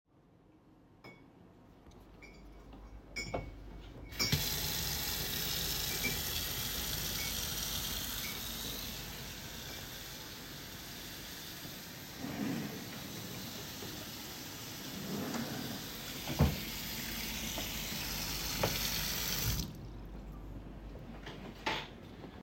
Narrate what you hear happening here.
I walked to the tap and turned it on while a colleague was opening a drawer and somebody was eating.